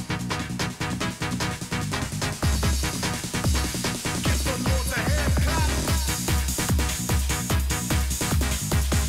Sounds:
Music, Dance music

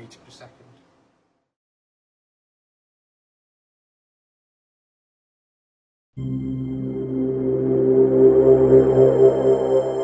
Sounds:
Speech, Music

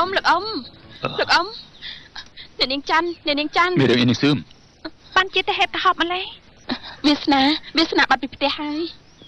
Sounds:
Speech

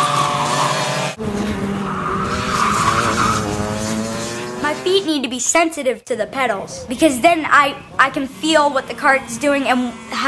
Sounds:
Speech

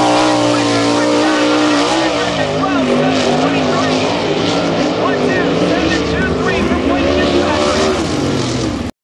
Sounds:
Speech

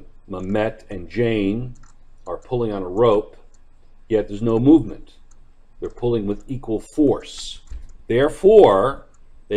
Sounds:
Speech

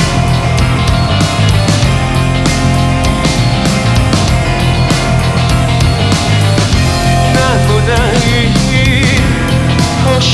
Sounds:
Music

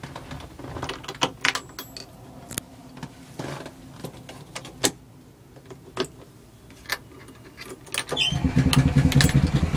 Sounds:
Vehicle

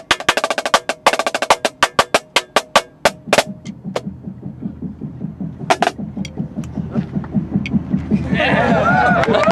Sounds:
playing snare drum

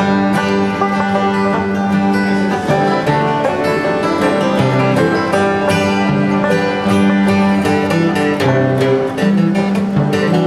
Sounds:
Banjo, Country, Music, playing banjo

